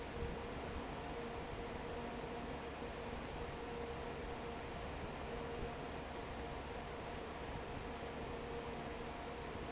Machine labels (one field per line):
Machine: fan